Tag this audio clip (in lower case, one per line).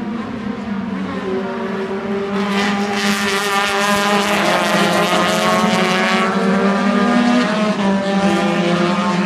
car passing by
vehicle
car